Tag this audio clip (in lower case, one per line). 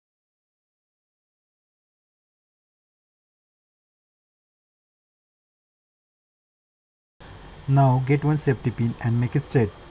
speech